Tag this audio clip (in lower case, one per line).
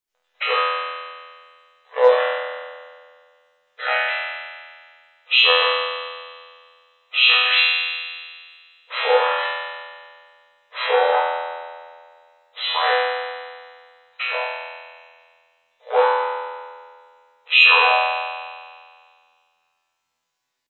speech
human voice
speech synthesizer